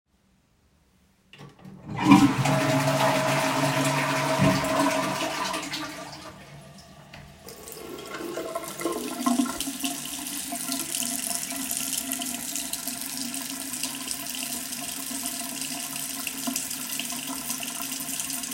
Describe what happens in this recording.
I flushed the toilet. Then I turned up the water to wash my hands.